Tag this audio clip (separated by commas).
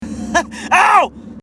Human voice, Laughter